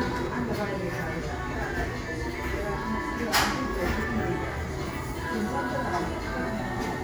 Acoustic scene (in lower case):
cafe